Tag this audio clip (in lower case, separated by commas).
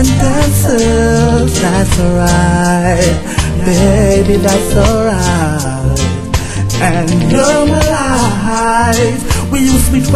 music